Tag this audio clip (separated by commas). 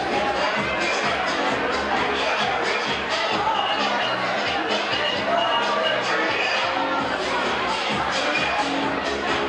Speech, Music, Dance music